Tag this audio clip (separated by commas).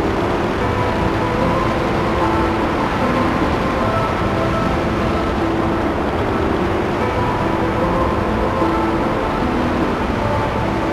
Music